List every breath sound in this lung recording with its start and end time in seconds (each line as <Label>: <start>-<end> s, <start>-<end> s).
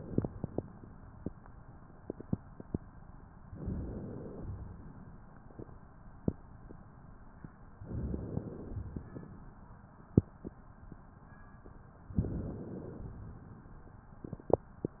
Inhalation: 3.55-4.52 s, 7.84-8.80 s, 12.18-13.15 s
Exhalation: 4.55-5.43 s, 8.86-9.73 s, 13.15-14.02 s